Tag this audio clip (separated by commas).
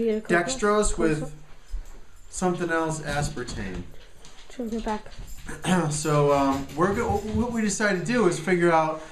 Speech